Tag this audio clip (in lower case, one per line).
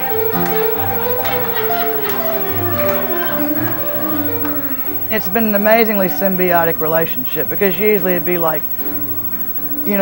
speech
music